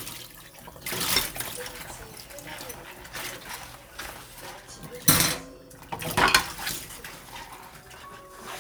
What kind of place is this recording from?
kitchen